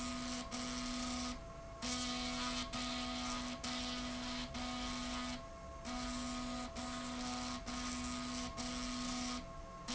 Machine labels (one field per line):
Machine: slide rail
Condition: abnormal